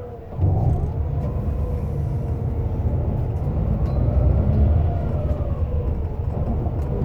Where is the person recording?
on a bus